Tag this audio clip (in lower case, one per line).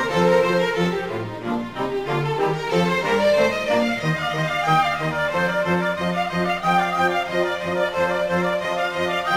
music